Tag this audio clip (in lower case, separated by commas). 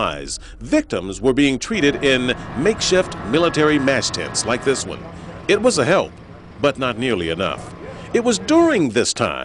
speech